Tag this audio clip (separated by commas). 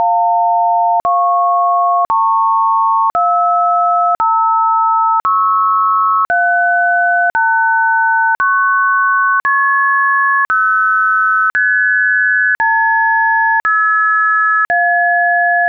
Alarm, Telephone